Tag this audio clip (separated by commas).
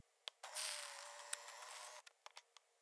Mechanisms, Camera